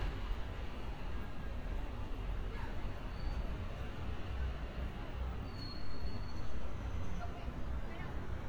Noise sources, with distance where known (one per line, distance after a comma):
background noise